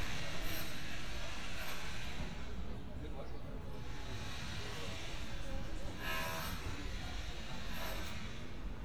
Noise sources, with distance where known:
chainsaw; person or small group talking, far

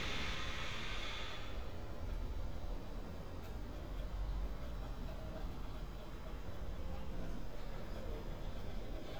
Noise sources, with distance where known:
background noise

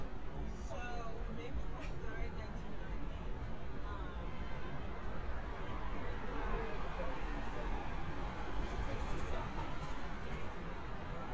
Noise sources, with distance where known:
unidentified human voice, far

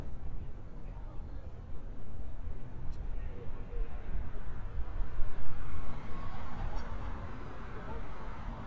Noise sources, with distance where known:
person or small group talking, far

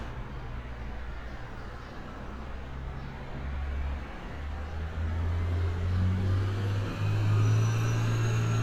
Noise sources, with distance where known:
large-sounding engine, near

